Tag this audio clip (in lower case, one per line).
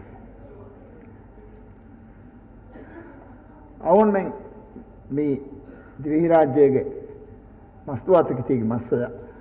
man speaking
speech
monologue